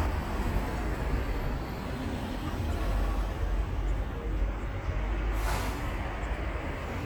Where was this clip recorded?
on a street